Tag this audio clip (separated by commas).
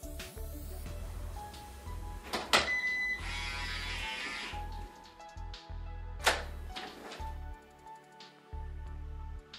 Music, Door, inside a small room